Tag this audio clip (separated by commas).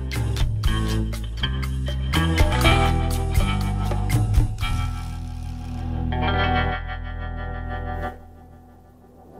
Music